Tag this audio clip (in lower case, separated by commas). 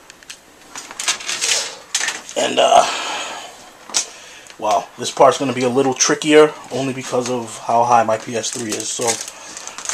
typewriter, speech, inside a small room